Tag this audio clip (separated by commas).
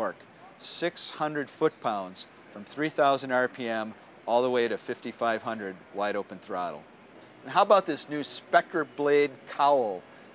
Speech